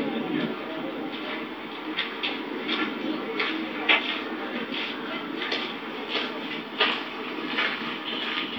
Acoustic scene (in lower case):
park